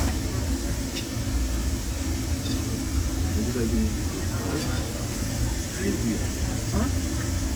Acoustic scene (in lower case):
crowded indoor space